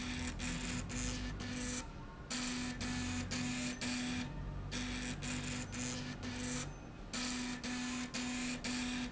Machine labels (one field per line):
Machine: slide rail